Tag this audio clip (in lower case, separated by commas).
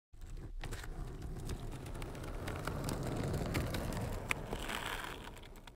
skateboard